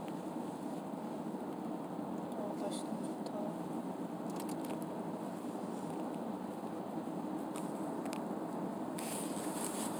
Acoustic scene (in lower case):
car